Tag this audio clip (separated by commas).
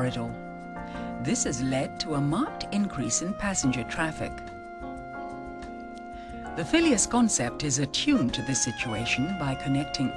Music, Speech